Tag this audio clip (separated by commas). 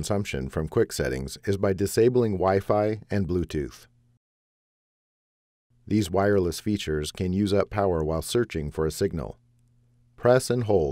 Speech